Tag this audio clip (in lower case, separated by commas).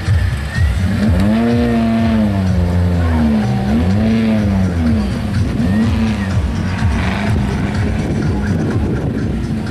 car, vehicle, music